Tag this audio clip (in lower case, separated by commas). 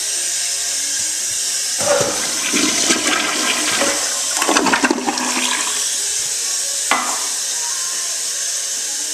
toilet flush, toilet flushing, music